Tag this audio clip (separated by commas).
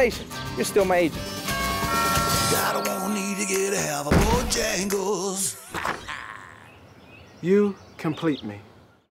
Music, Speech